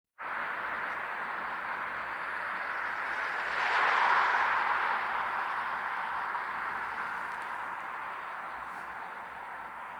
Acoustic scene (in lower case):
street